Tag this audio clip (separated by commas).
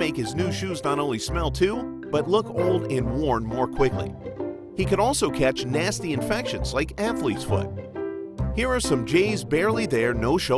Speech, Music